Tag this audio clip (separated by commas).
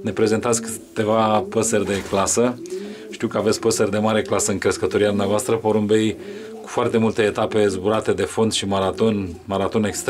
inside a small room, Pigeon, Speech, Bird